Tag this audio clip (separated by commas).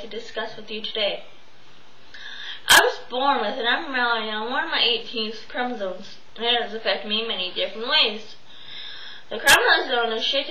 Speech, monologue, woman speaking